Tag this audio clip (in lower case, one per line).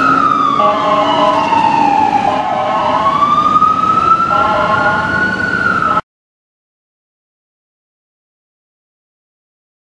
ambulance (siren)